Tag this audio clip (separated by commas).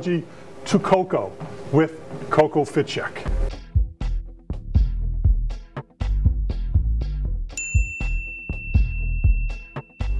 Music, Speech